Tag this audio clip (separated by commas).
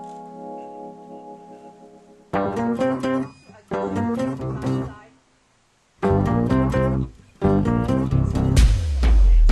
Musical instrument, Plucked string instrument, Music, Bass guitar, Speech